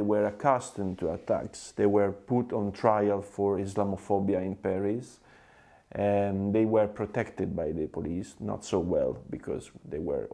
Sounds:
Speech, man speaking, Narration

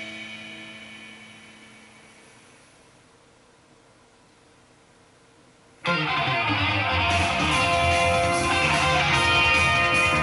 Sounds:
Music

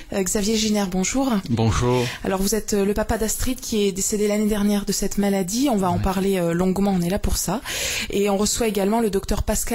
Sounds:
Speech

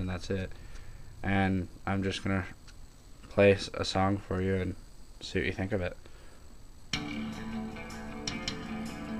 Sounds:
Speech

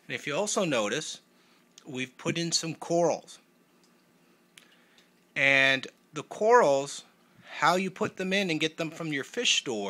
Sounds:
Speech

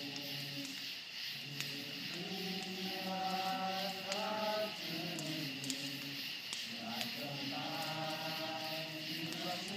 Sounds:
Choir, Male singing

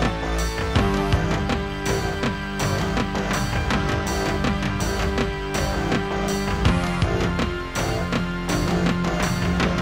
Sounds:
Music

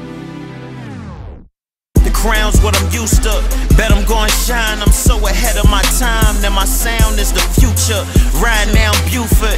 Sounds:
Music

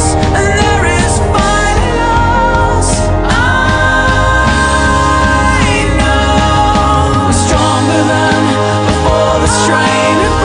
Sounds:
Music

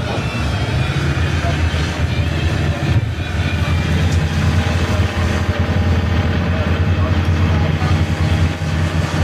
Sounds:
Speech, Vehicle, Bus, outside, urban or man-made

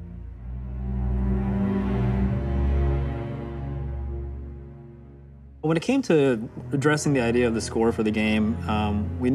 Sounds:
Music, Speech

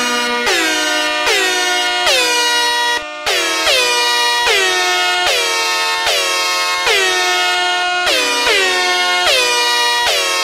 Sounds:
Music

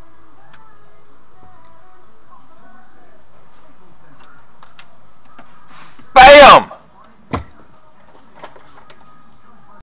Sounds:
Music, Speech

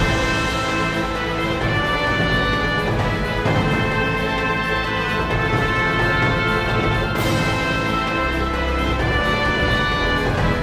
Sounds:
Music

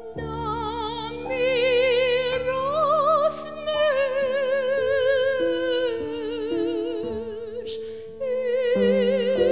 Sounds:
Music, Lullaby

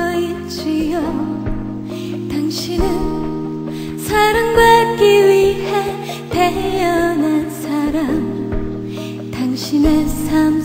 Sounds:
Music

